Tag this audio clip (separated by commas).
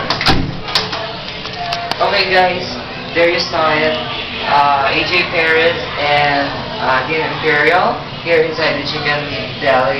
Speech